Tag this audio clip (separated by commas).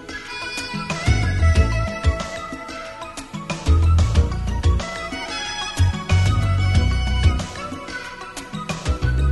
Music